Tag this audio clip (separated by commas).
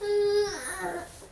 Human voice, Speech